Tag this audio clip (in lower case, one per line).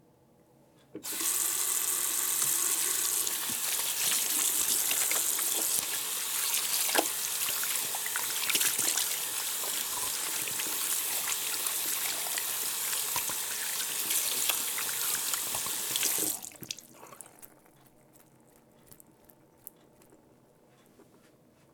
faucet
domestic sounds
sink (filling or washing)